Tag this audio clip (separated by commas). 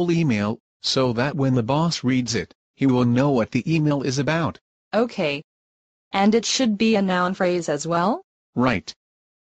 Speech